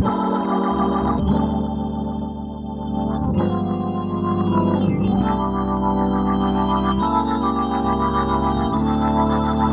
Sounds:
Music

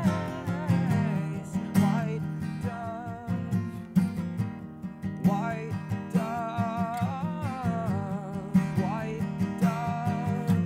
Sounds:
Music

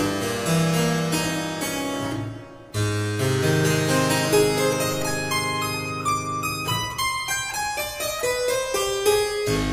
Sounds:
Music, Harpsichord

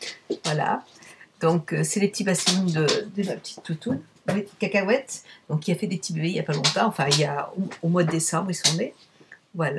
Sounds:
Speech

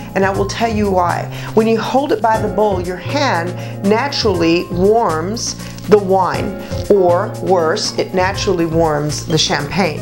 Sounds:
Speech, Music

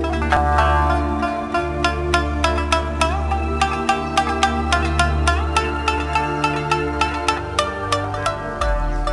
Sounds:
Music

